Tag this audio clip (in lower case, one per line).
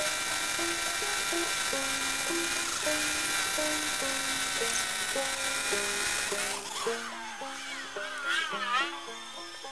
inside a large room or hall
vehicle
music